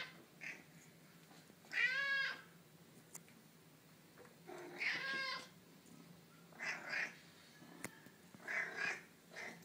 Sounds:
Meow, Domestic animals, cat meowing, Cat, Animal

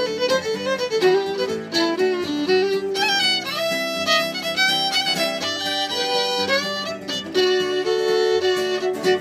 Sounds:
Musical instrument, Music, fiddle

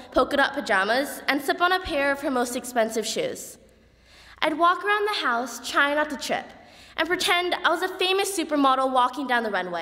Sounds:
Speech, monologue, Female speech

